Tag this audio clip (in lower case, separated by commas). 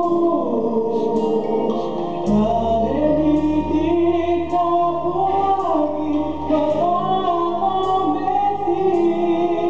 music, female singing